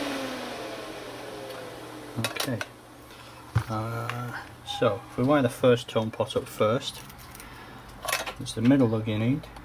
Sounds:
inside a small room, Speech

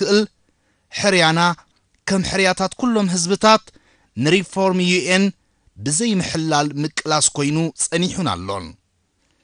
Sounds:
Speech, Narration, Male speech

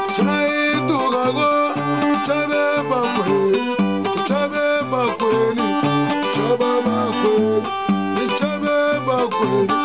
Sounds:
Guitar, Music, Musical instrument, Plucked string instrument

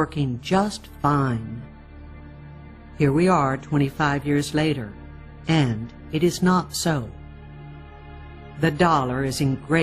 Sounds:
Music, Speech

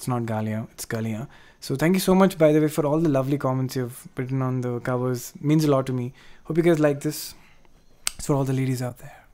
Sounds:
Music, Speech

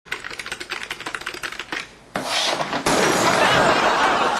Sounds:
Typewriter

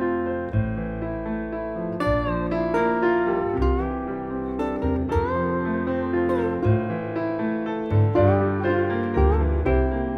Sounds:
Musical instrument, Piano, Music

